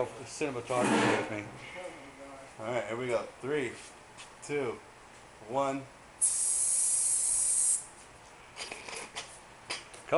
A person speaks followed by spraying and laughing